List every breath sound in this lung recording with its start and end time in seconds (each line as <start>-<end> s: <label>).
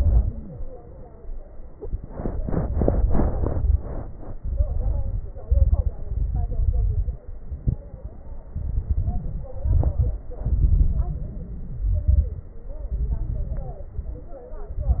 0.00-0.66 s: inhalation
0.00-0.66 s: wheeze
0.00-0.66 s: crackles
4.39-5.34 s: exhalation
4.39-5.34 s: crackles
5.45-6.00 s: inhalation
5.45-6.00 s: crackles
6.06-7.16 s: exhalation
6.06-7.16 s: crackles
7.30-8.11 s: inhalation
7.30-8.11 s: crackles
8.53-9.52 s: exhalation
8.53-9.52 s: crackles
9.56-10.26 s: inhalation
9.56-10.26 s: crackles
10.39-11.82 s: exhalation
10.39-11.82 s: crackles
11.86-12.56 s: inhalation
11.86-12.56 s: crackles
12.68-13.89 s: exhalation
12.68-13.89 s: crackles